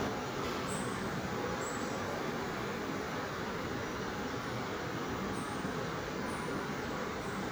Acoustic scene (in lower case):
subway station